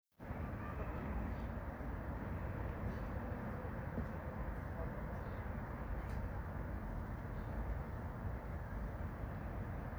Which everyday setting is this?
residential area